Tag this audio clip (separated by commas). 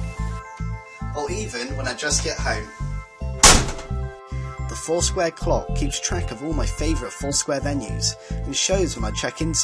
inside a small room, Music, Speech